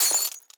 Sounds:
Shatter, Glass

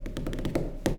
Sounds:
Tap

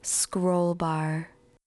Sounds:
Speech, Human voice, Female speech

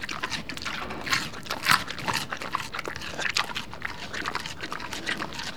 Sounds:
livestock, Animal

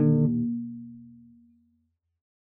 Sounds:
Musical instrument, Bass guitar, Plucked string instrument, Music, Guitar

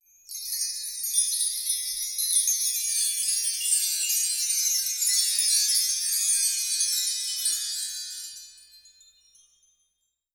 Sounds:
Chime, Bell, Wind chime

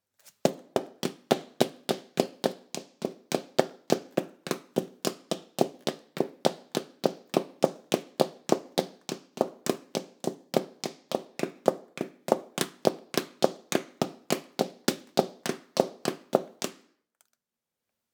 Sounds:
Run

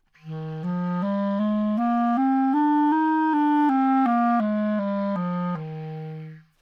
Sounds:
Wind instrument, Music, Musical instrument

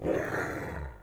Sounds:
Growling, Dog, Animal, Domestic animals

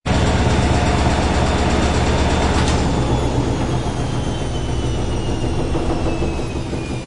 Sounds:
Engine

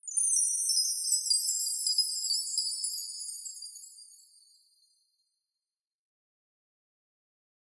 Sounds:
Bell, Chime

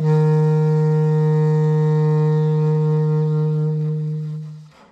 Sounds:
Musical instrument, Wind instrument, Music

